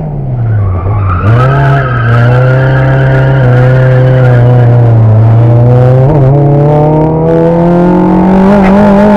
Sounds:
car, tire squeal, vehicle

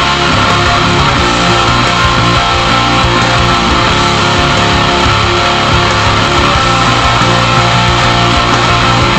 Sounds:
musical instrument, music, guitar, plucked string instrument

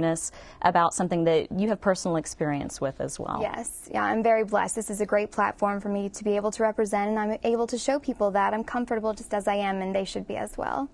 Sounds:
woman speaking, speech

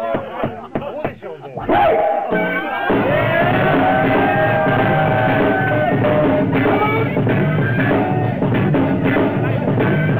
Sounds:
music, speech, percussion

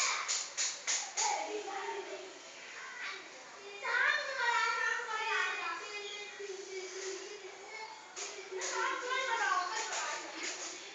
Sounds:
speech

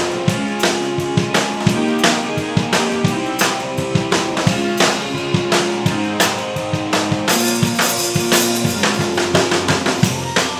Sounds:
music, musical instrument, drum, drum kit

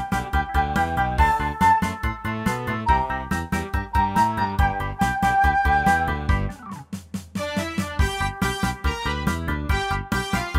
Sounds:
music

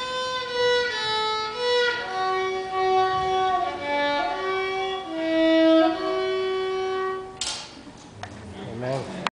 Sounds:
bowed string instrument, violin

